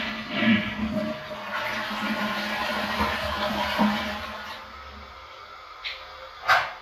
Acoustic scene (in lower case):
restroom